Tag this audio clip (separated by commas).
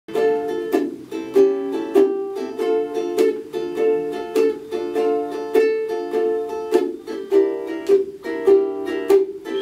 playing ukulele